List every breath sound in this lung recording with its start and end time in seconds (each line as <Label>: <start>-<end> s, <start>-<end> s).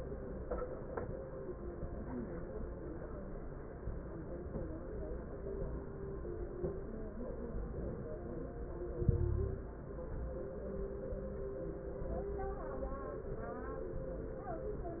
Inhalation: 8.95-9.73 s
Crackles: 8.95-9.73 s